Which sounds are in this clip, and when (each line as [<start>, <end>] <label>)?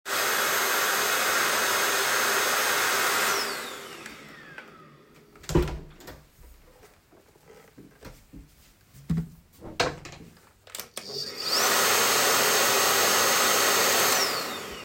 [0.04, 5.53] vacuum cleaner